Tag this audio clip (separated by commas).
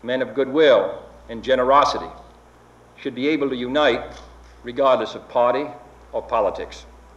Speech, Human voice